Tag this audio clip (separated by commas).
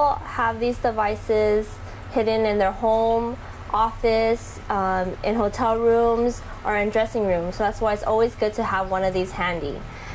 Speech